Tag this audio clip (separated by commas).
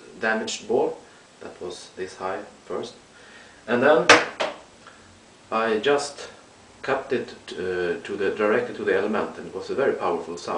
Speech